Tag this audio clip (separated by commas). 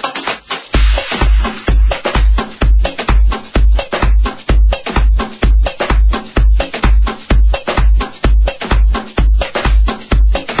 Music